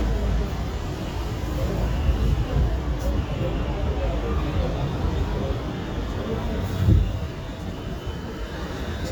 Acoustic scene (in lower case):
residential area